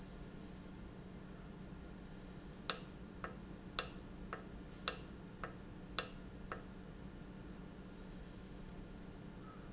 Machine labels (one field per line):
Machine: valve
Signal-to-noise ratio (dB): 6 dB